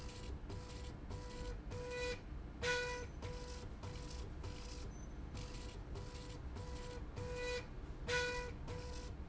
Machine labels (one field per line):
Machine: slide rail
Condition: normal